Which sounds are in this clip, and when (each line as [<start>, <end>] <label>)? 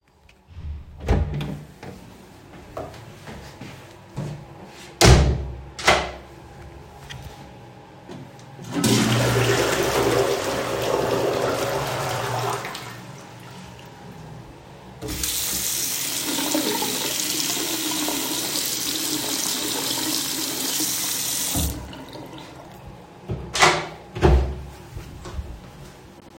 [0.45, 2.08] door
[2.18, 4.93] footsteps
[4.92, 6.27] door
[8.53, 14.28] toilet flushing
[14.72, 22.77] running water
[23.28, 24.72] door
[24.59, 26.33] footsteps